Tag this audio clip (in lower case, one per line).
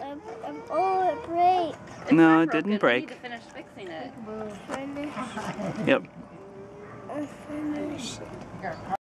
speech